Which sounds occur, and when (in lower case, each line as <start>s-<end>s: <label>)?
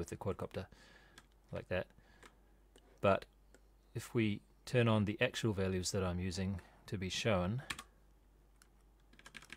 0.0s-9.5s: background noise
0.0s-0.7s: man speaking
0.6s-1.2s: breathing
1.1s-1.4s: computer keyboard
1.5s-1.8s: man speaking
1.9s-2.6s: breathing
2.1s-2.3s: computer keyboard
3.0s-3.2s: man speaking
3.9s-4.4s: man speaking
4.6s-6.6s: man speaking
6.5s-6.8s: breathing
6.8s-7.7s: man speaking
7.6s-7.9s: computer keyboard
8.6s-9.0s: computer keyboard
9.1s-9.5s: computer keyboard